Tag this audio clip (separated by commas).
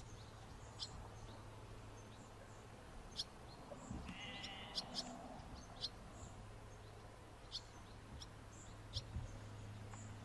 barn swallow calling